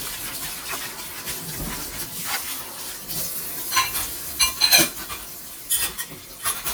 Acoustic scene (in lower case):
kitchen